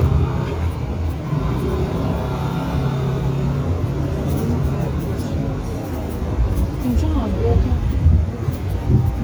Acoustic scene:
residential area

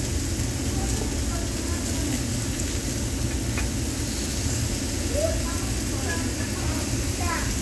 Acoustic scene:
restaurant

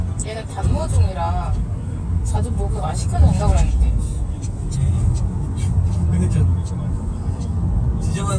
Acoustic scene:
car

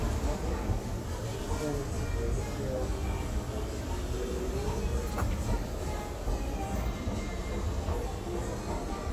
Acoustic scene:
crowded indoor space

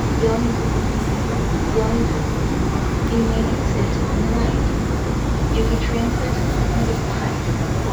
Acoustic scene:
subway train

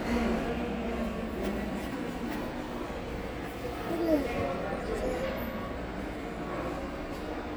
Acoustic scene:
subway station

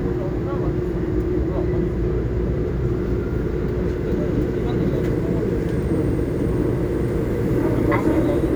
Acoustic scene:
subway train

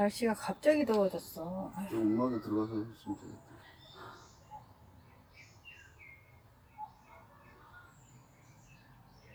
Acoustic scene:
park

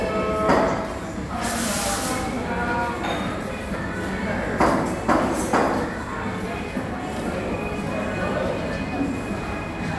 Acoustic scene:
cafe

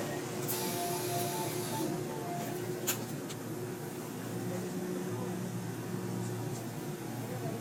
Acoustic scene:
subway train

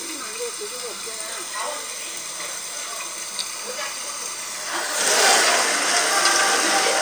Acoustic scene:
restaurant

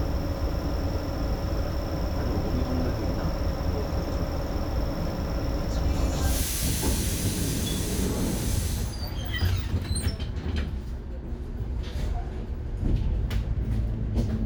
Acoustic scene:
bus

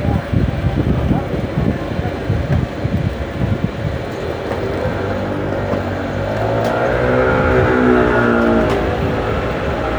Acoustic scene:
street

